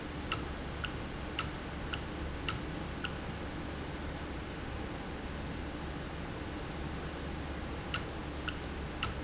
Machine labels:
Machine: valve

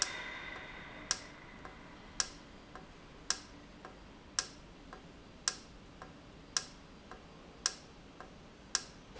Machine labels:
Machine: valve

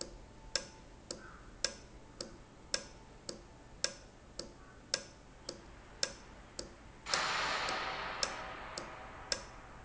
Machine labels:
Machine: valve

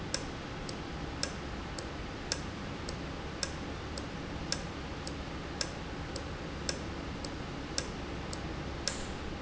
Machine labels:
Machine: valve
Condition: normal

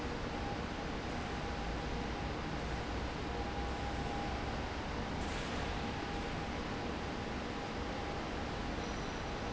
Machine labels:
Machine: fan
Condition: abnormal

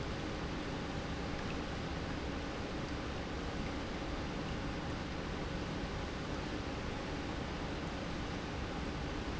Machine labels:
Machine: pump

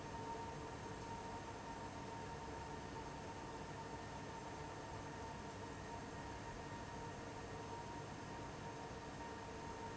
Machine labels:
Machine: fan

